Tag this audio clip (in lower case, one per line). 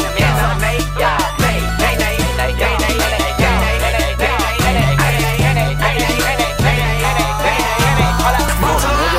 music